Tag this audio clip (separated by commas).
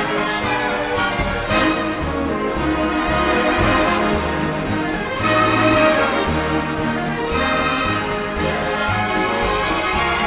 orchestra